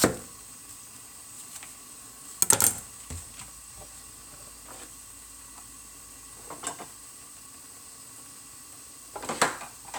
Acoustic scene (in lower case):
kitchen